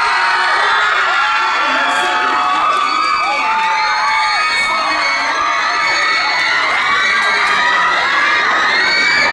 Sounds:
inside a public space, speech

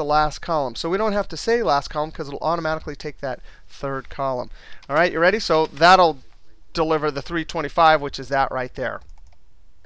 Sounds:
clicking, inside a small room, speech

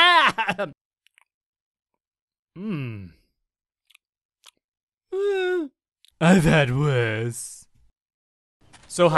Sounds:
speech

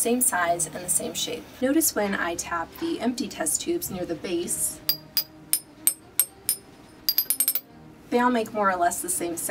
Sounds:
speech, music

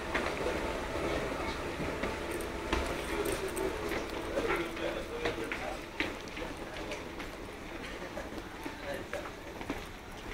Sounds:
speech

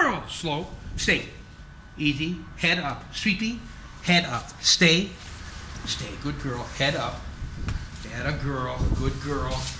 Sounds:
speech

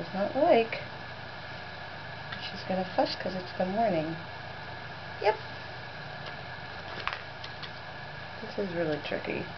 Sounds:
speech

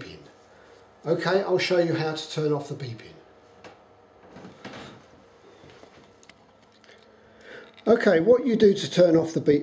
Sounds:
speech

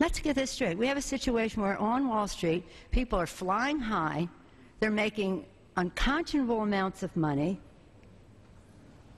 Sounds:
monologue, woman speaking, speech

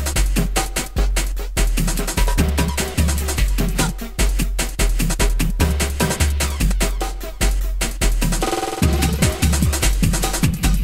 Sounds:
music

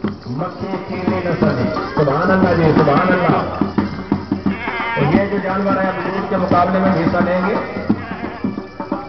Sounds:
sheep, music, bleat, speech

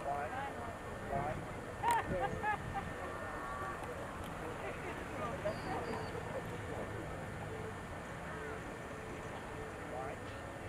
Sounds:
speech

